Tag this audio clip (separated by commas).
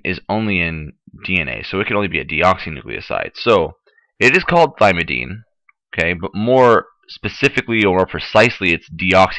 monologue